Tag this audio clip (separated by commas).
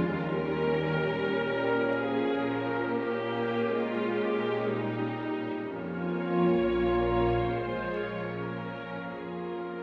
Music